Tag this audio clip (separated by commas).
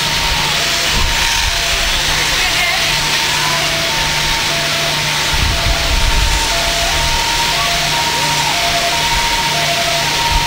Speech